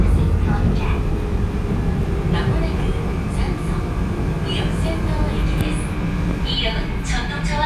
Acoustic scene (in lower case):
subway train